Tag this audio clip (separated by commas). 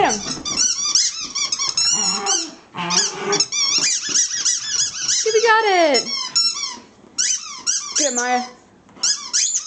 Growling, Domestic animals, Dog, Squeak, Animal